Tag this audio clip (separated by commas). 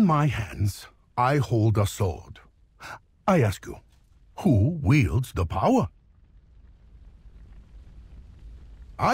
Speech synthesizer